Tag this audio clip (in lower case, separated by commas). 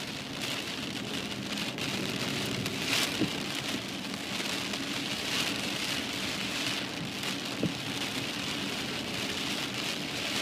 rain on surface